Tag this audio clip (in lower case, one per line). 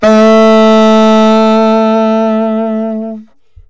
musical instrument
music
wind instrument